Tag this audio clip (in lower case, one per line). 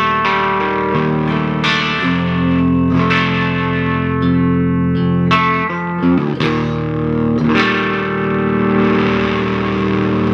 music
musical instrument
plucked string instrument
effects unit
guitar